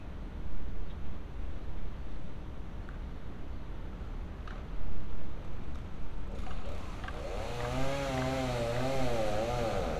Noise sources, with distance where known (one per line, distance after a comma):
chainsaw, near